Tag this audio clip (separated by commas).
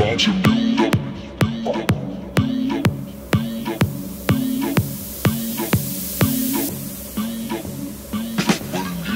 outside, urban or man-made, Music